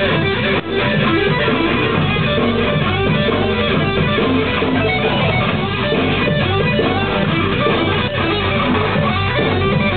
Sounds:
Guitar, Music, Musical instrument

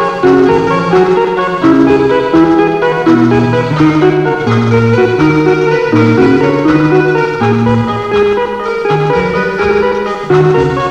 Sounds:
Music

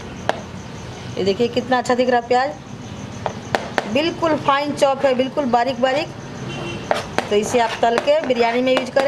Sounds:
chopping food

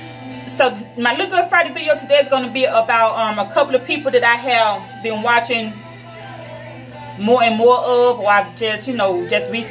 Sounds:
Speech, Music

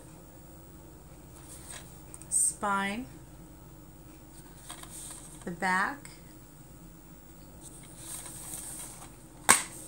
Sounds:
inside a small room, Speech

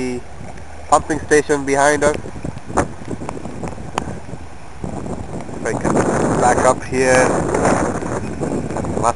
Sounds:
Speech

